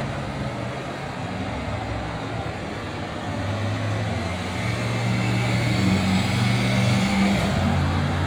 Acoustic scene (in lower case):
street